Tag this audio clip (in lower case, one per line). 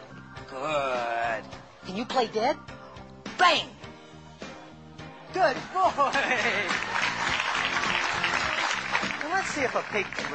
speech
music